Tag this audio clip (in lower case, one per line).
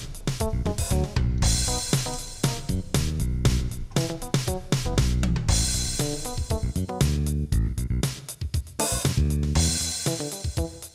drum kit
music